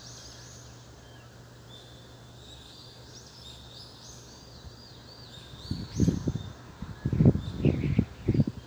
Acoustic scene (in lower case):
park